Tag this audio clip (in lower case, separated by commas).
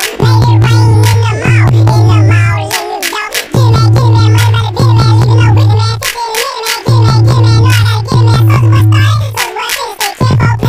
music